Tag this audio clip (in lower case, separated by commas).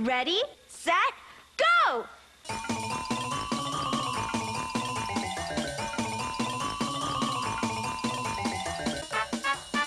speech, music